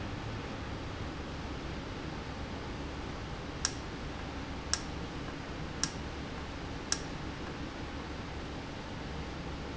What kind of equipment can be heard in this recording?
valve